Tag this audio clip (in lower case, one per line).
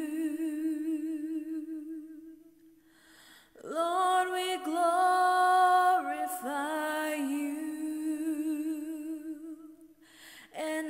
female singing